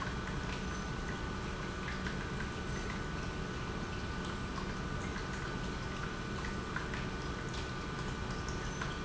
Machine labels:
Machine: pump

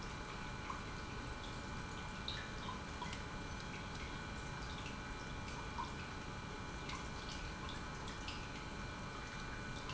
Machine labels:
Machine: pump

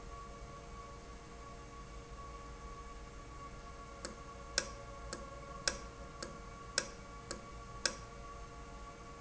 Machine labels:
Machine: valve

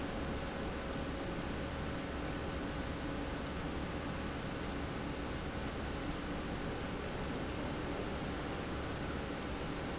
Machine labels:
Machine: pump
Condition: normal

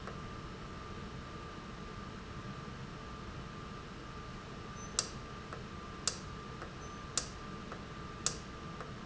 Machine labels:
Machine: valve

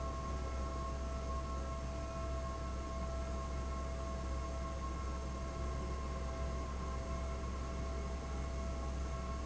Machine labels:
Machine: fan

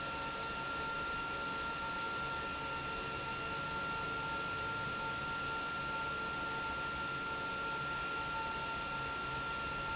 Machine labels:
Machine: pump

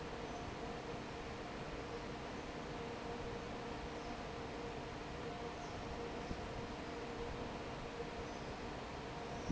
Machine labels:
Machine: fan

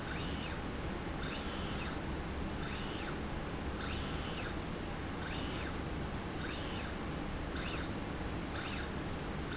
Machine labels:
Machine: slide rail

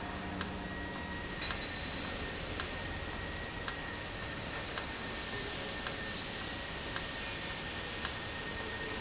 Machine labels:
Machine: valve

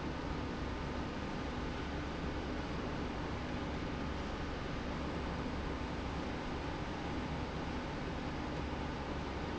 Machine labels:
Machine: slide rail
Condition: normal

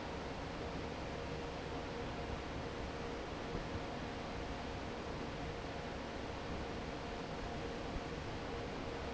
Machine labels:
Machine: fan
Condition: normal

